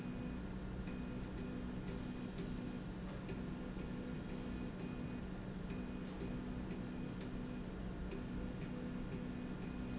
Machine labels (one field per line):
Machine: slide rail